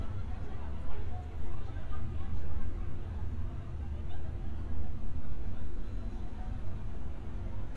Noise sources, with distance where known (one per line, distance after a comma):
person or small group talking, far